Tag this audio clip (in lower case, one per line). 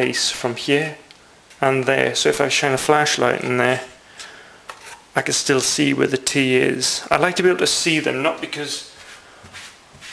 inside a small room
speech